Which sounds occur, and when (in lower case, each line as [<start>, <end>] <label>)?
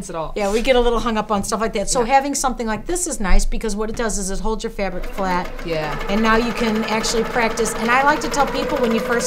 [0.00, 4.96] female speech
[0.00, 9.25] conversation
[0.00, 9.25] mechanisms
[1.40, 1.56] tap
[2.56, 2.77] tap
[3.88, 4.13] tap
[4.76, 9.25] sewing machine
[5.13, 5.43] female speech
[5.64, 9.25] female speech